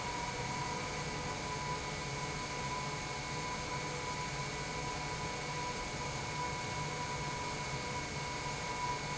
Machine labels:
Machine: pump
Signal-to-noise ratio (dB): -6 dB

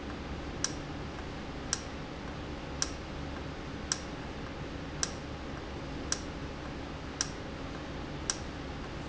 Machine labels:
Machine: valve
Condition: normal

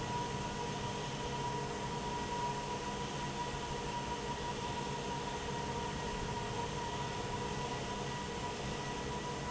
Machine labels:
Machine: fan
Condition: normal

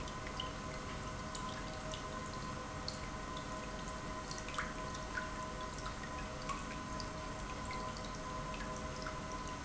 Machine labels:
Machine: pump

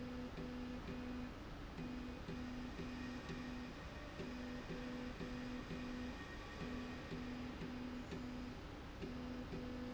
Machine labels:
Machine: slide rail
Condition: normal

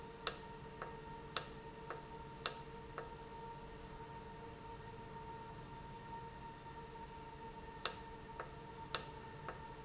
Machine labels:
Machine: valve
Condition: normal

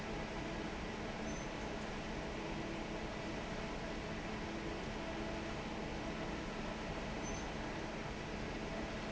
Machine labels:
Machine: fan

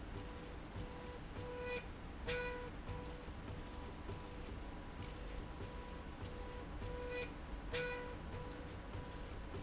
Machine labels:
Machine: slide rail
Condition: normal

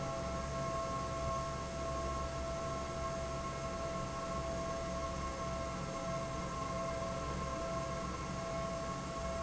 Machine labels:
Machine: fan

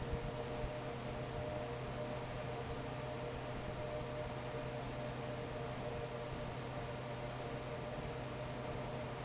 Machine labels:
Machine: fan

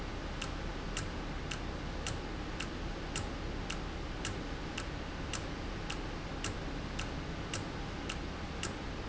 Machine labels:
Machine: valve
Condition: normal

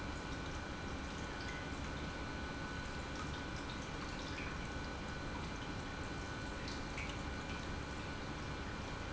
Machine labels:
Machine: pump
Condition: normal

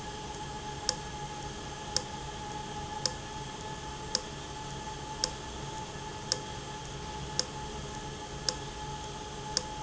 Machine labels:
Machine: valve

